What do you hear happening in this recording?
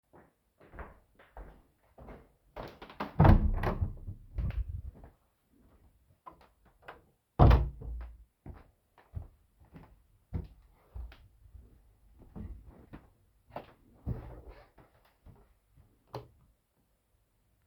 I walked to my bedroom and opened the door got in and closed the door. Then i turned on the light.